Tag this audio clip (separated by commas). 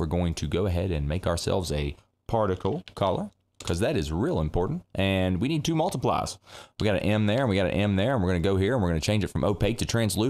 Speech